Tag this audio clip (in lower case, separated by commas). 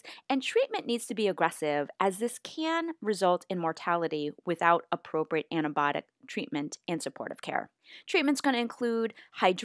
speech